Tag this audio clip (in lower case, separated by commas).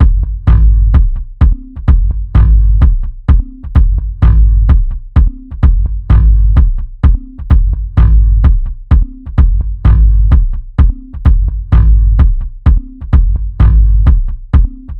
drum, music, musical instrument, bass drum, percussion